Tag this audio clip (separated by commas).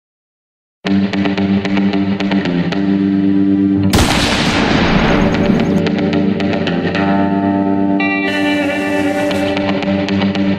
Music